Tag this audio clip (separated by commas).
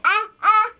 Human voice, Speech